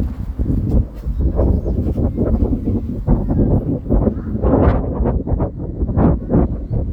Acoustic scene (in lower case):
residential area